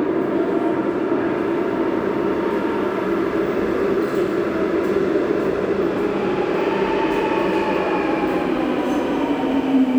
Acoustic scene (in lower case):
subway station